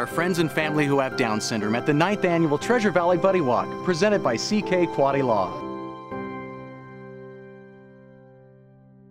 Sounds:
music
speech

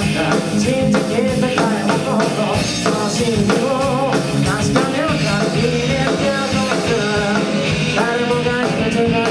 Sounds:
music

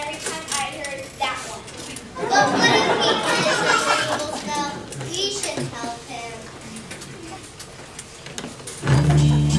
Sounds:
music
speech

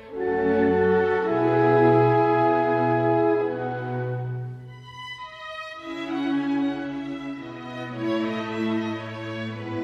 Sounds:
music
fiddle
musical instrument

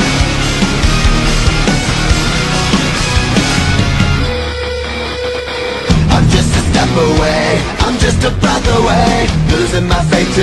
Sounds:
theme music
music

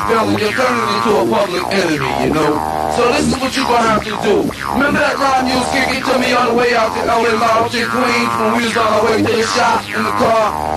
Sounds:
music

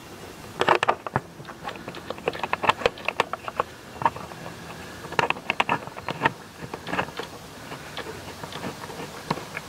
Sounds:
tools

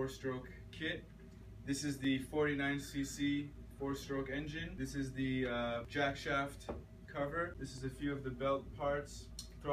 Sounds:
speech

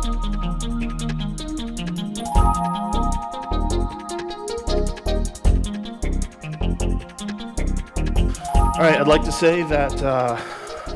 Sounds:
speech
music

